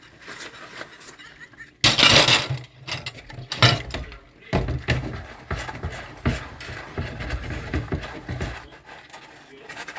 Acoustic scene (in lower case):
kitchen